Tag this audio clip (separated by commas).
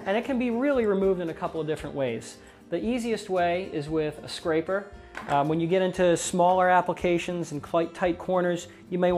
Music, Speech